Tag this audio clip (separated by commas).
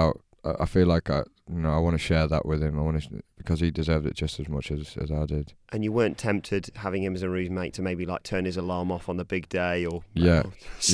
Speech